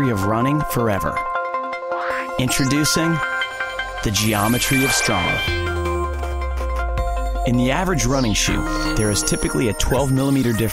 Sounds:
speech, music

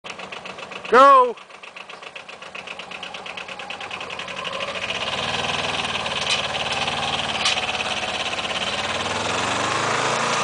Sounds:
speech, vehicle, outside, rural or natural

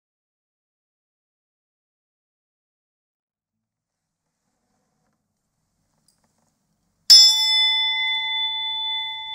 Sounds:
silence

